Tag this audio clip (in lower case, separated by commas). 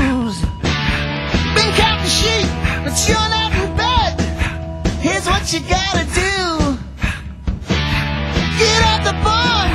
music